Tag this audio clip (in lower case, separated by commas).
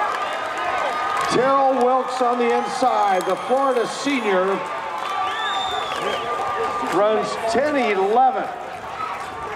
outside, urban or man-made, speech